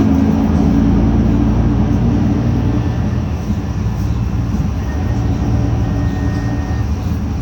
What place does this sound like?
bus